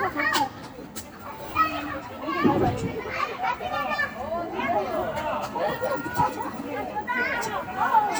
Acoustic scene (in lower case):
residential area